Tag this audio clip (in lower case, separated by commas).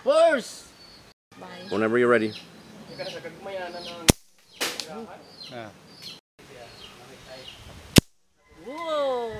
speech